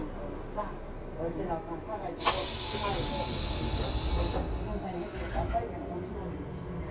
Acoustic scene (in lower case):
subway train